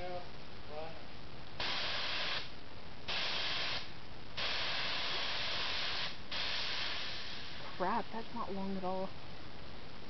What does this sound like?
Man speaking then spraying high pressure device, woman speaking